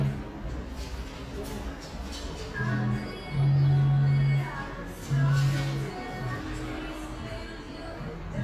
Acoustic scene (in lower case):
cafe